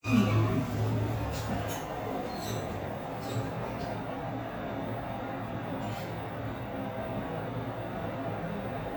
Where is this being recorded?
in an elevator